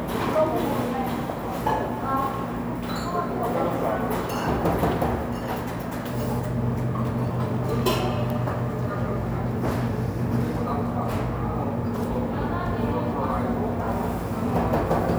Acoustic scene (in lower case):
cafe